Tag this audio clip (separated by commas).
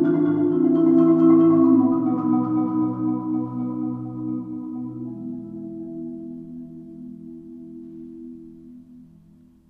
Glockenspiel, Mallet percussion, Marimba